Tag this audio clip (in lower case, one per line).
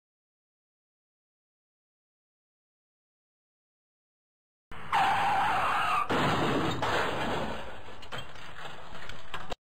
car passing by
motor vehicle (road)
vehicle
car
skidding